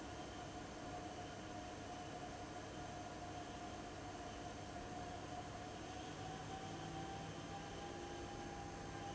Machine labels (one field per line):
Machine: fan